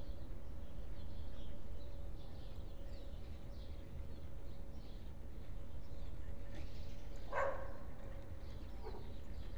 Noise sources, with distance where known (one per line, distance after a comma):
dog barking or whining